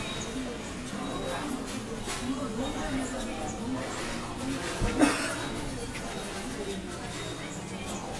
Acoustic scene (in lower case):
subway station